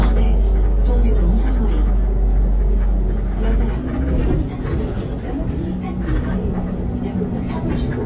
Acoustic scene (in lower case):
bus